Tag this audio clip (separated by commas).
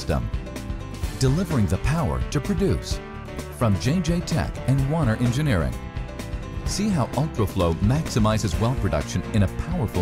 Speech, Music